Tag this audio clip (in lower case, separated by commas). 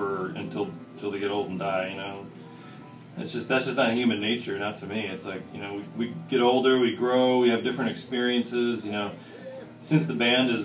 musical instrument, speech